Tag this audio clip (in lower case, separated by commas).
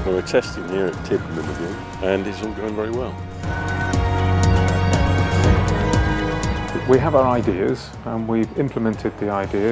speech, music